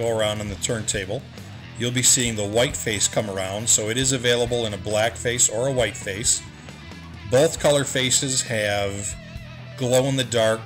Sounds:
music
speech

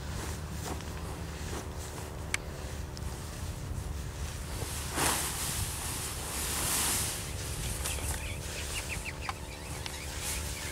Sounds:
turkey

